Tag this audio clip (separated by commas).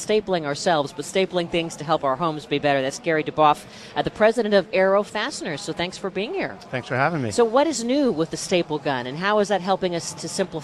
Speech